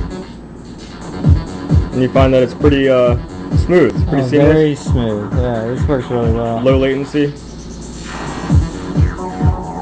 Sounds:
music, inside a small room, speech

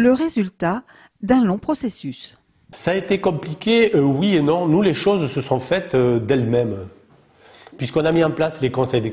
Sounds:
speech

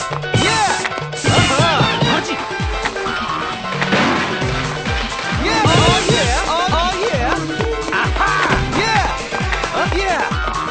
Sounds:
speech, music

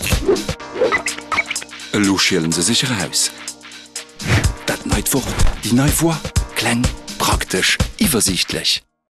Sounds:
speech, music

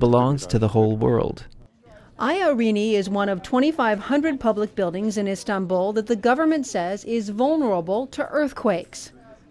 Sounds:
speech

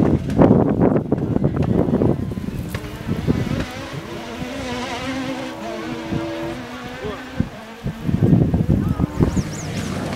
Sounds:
speech

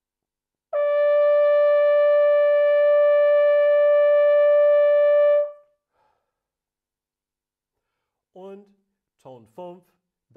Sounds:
playing bugle

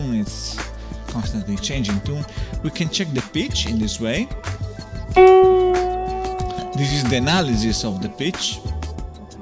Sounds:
music, harmonic, speech

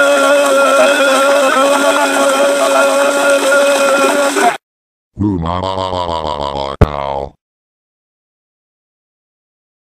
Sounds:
speech

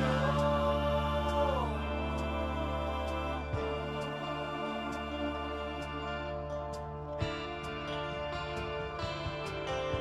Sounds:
music, new-age music

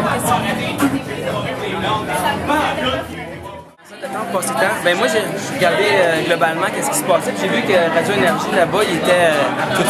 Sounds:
music, speech

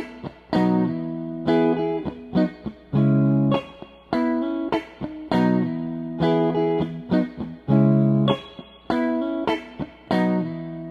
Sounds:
music, guitar, musical instrument, electric guitar, plucked string instrument

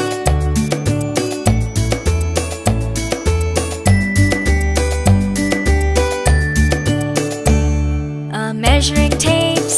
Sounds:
singing, song, music for children, music

